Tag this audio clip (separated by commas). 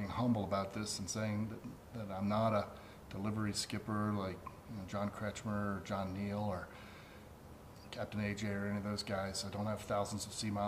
Speech